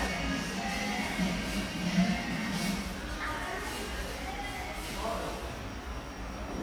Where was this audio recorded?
in a cafe